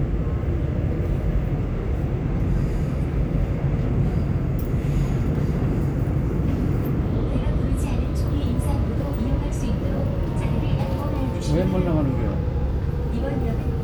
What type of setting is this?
subway train